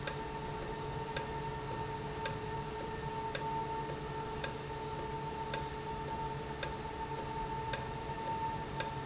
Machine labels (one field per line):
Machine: valve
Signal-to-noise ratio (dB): -6 dB